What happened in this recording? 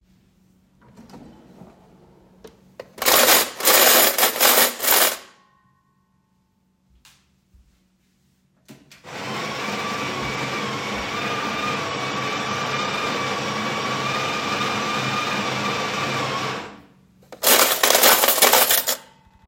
First, I opened the drawer and put some cutlery in. Then I turned on the coffee machine and played with the cutlery.